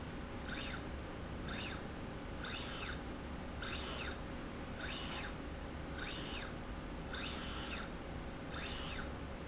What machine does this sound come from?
slide rail